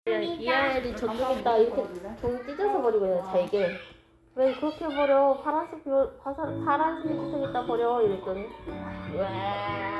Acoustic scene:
crowded indoor space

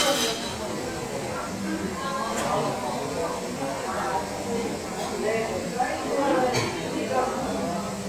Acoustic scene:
cafe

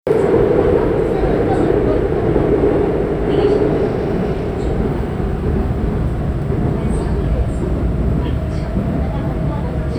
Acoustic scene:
subway train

